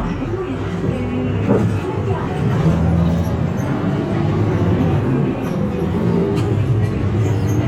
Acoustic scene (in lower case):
bus